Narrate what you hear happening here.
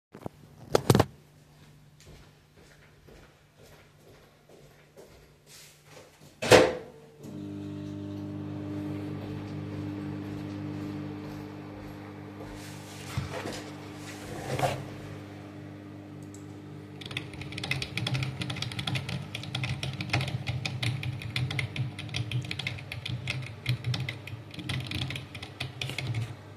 I walked to the microwave and turned it on, then walked back to my chair, set down and then typed on the keyboard.